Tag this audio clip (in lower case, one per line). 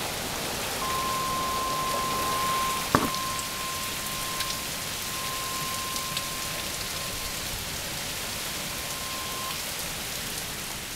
rain